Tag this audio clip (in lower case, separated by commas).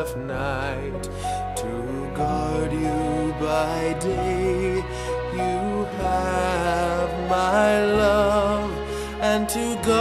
music, lullaby